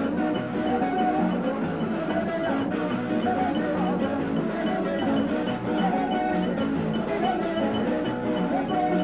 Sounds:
Folk music, Music, Dance music

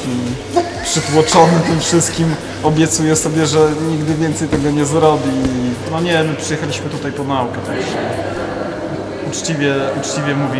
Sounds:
Music, Speech, inside a small room

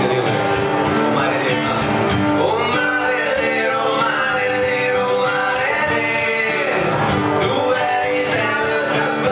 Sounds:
Male singing, Music, Speech

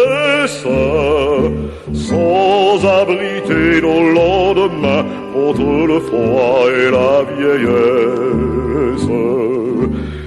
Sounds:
Music, Mantra

